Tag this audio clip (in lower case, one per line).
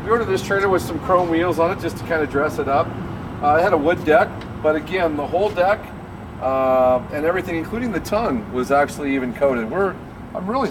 speech